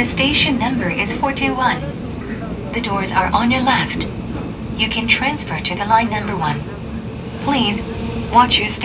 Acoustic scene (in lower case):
subway train